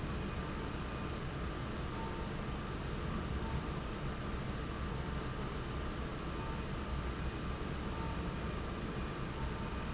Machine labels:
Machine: fan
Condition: normal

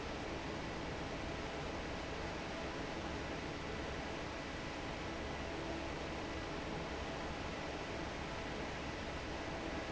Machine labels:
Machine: fan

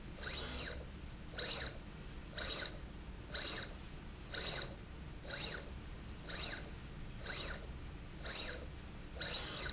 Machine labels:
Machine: slide rail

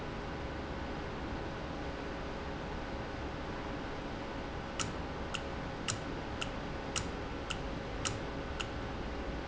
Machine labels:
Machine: valve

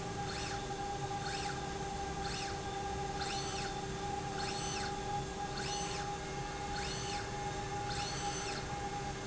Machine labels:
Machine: slide rail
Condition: normal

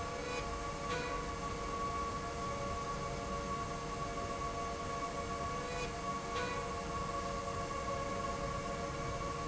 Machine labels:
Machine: slide rail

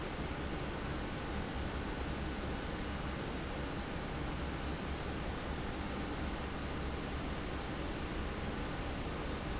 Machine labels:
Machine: fan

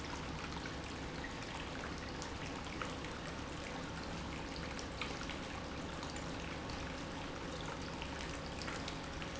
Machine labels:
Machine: pump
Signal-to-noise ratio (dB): 0 dB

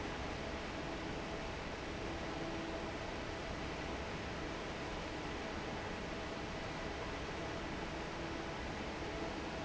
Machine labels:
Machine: fan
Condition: normal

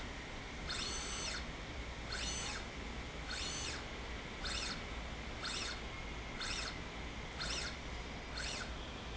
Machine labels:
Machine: slide rail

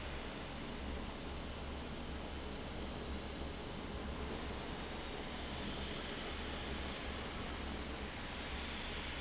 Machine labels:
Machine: fan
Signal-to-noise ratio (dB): 0 dB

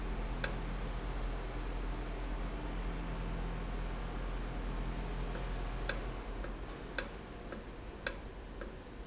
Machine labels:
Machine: valve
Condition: normal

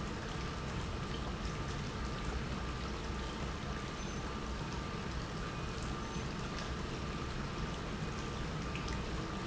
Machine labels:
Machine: pump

